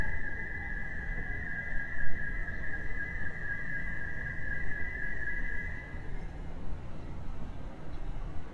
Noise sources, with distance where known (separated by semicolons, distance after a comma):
car alarm